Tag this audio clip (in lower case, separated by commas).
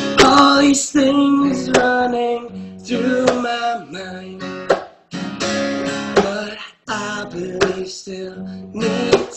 music, male singing